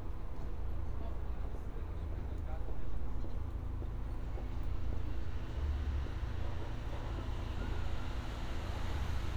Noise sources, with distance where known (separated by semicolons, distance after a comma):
unidentified human voice, near